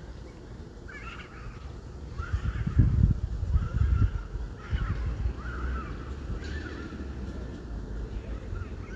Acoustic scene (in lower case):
residential area